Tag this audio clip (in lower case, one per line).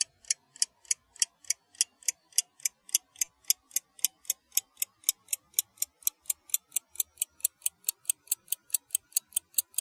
mechanisms
clock